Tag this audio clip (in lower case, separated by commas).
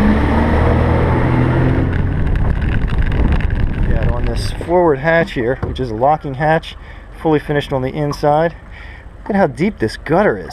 speech, vehicle, speedboat, boat